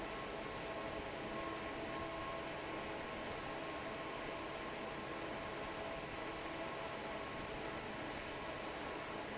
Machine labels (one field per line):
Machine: fan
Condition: normal